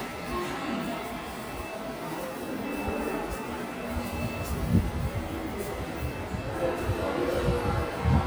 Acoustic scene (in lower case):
subway station